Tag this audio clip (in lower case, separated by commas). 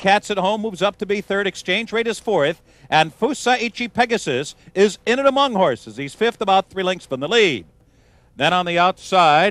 speech